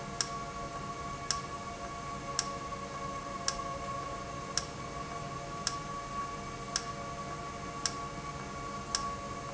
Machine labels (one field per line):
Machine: valve